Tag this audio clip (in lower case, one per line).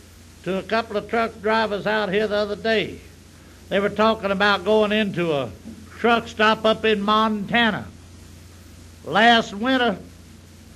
speech